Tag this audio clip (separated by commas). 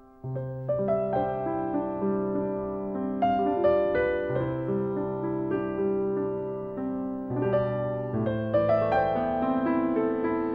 Music, Theme music